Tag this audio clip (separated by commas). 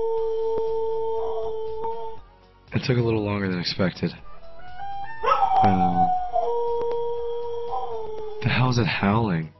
dog howling